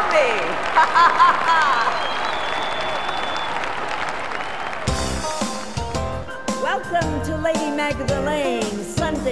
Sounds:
Speech, Music

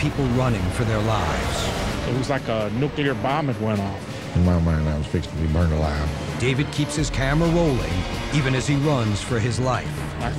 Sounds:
Music, Speech

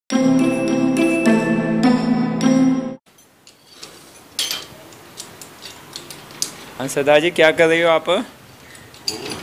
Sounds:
Speech, Music

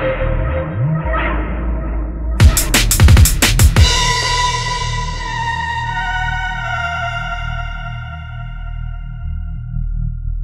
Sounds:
Music, Electronic music, Drum and bass

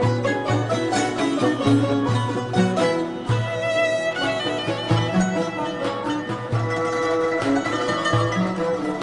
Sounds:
Music, Folk music

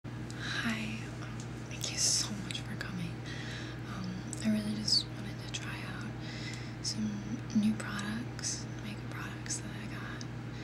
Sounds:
Speech, inside a small room

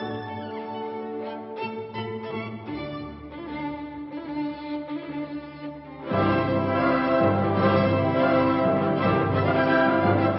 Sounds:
playing violin, Musical instrument, Music, Violin

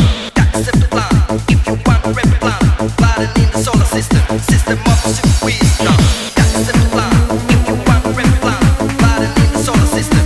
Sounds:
Music, Techno, Electronic music

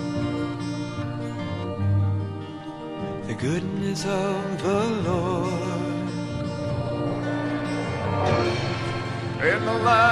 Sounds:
Music, Background music

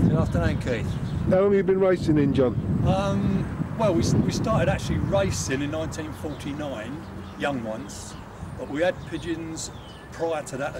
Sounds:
Bird, Speech

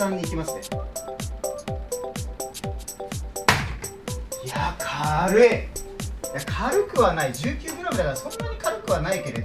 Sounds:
playing darts

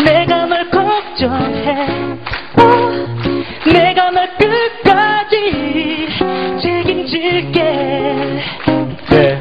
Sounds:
Music, Female singing

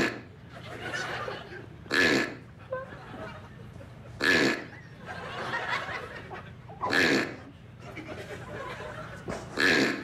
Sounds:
people farting

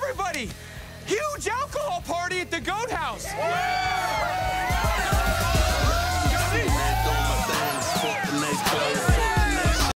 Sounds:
Speech, Music

